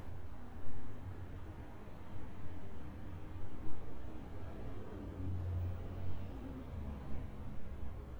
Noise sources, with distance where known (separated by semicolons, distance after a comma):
background noise